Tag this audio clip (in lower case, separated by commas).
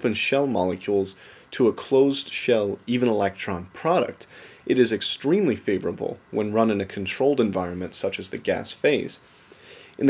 speech